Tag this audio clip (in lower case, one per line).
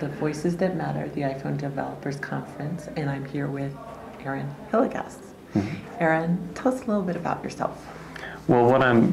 speech